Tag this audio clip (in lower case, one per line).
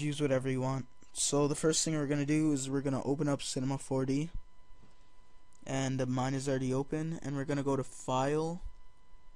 speech